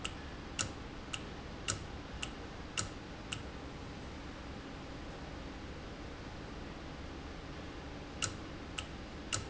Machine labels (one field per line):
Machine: valve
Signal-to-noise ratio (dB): 0 dB